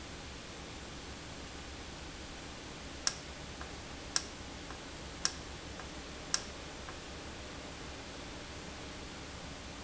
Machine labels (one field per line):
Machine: valve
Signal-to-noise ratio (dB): 0 dB